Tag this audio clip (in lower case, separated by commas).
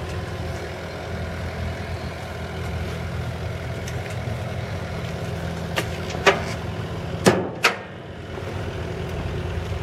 vehicle